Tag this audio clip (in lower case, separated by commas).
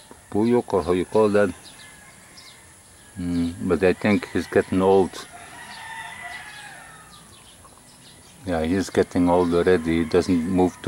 animal, speech, outside, rural or natural